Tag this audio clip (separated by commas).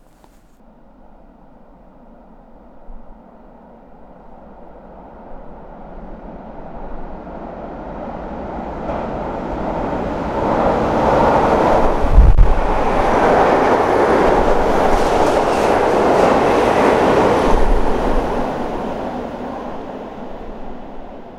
Train, Vehicle, Rail transport